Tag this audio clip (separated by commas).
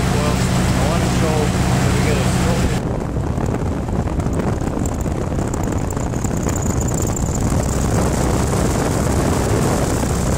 Speech, Wind, Wind noise (microphone)